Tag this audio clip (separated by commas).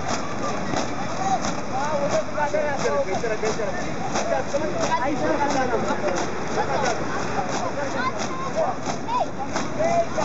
outside, urban or man-made, Speech, Crowd